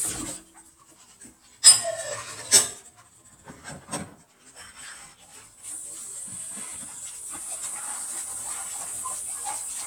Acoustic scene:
kitchen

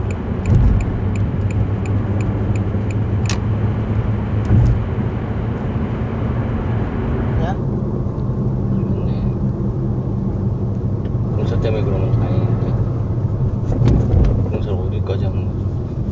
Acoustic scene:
car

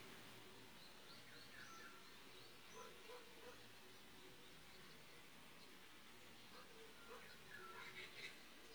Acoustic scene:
park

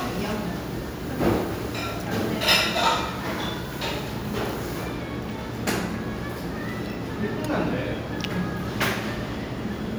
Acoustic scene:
restaurant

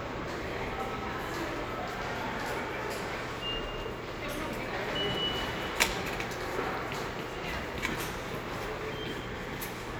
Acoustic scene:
subway station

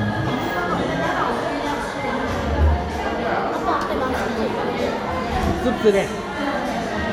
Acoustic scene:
crowded indoor space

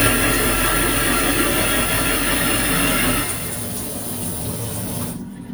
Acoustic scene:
kitchen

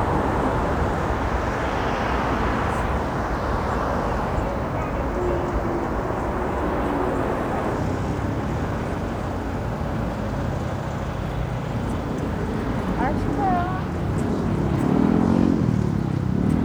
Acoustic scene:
street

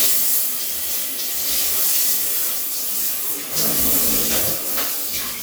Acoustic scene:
restroom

